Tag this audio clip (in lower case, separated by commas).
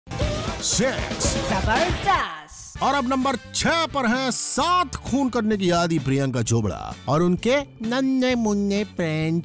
music, speech